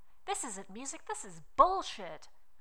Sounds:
human voice, woman speaking, speech

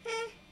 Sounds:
human voice, speech

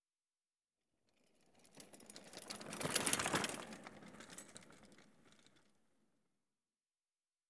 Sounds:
vehicle, bicycle

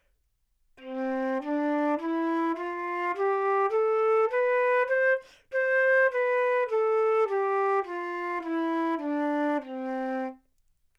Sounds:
wind instrument, musical instrument, music

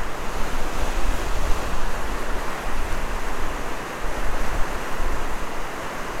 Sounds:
water

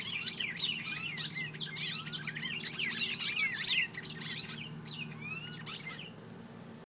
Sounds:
bird song, bird, animal, wild animals, chirp

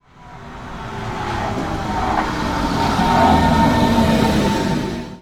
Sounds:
vehicle, train, rail transport

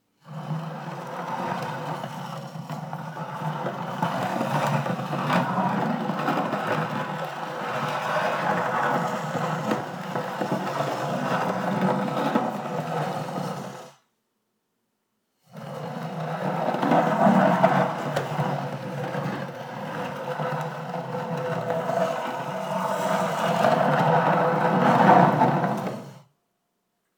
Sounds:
wood

